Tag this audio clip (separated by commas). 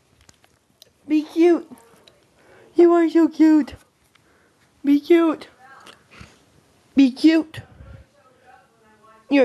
Speech